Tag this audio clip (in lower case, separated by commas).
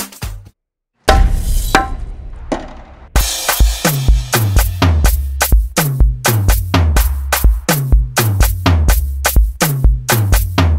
music